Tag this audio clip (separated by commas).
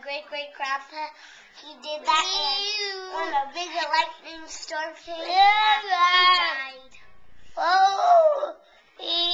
Speech, Child singing